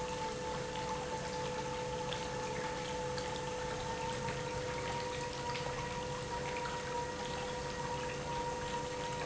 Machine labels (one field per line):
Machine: pump